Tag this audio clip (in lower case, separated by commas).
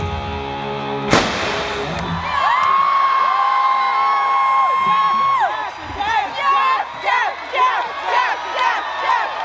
whoop